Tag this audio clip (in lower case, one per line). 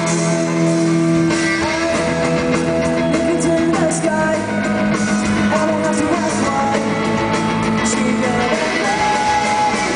music